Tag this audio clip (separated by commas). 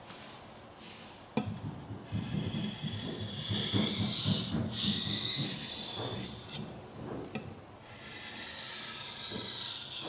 sharpen knife